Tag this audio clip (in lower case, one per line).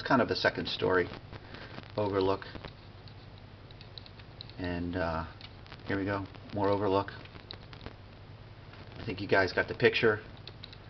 inside a large room or hall
speech